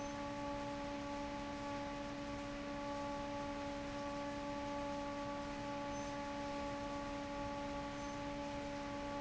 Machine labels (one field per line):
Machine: fan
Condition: normal